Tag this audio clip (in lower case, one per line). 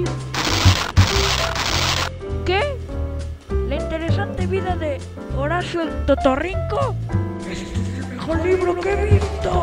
music
speech